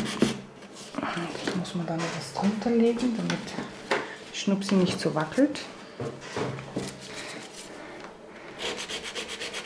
A person speaks followed by sanding